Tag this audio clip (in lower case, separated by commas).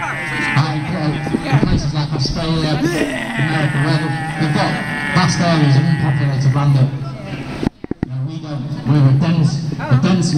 outside, urban or man-made, speech